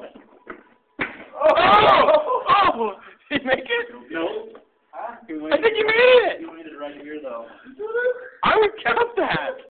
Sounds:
speech

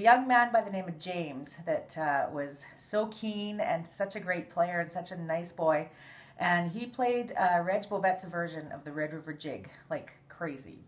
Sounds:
speech

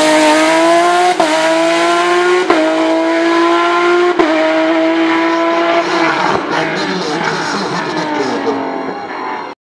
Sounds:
outside, rural or natural
blender
speech

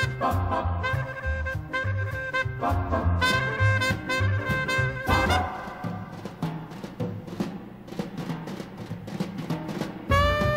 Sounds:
music
timpani

